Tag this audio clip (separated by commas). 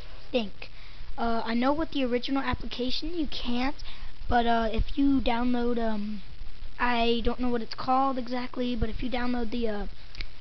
Child speech, Speech, monologue